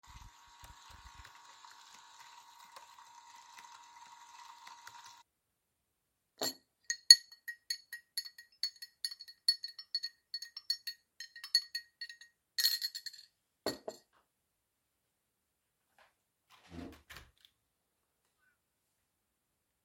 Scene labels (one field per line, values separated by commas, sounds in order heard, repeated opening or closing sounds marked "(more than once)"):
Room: bedroom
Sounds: coffee machine, keyboard typing, cutlery and dishes, window